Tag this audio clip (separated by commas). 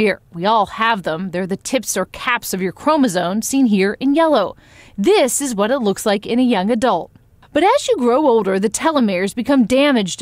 Speech